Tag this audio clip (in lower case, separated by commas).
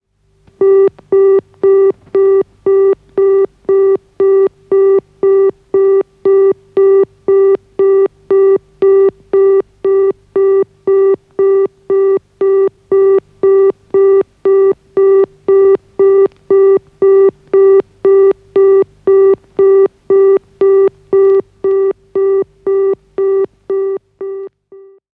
telephone, alarm